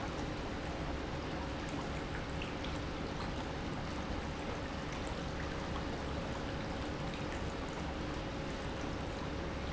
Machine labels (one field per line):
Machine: pump